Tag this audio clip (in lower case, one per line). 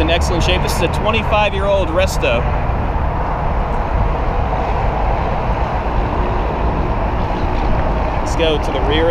car
speech
vehicle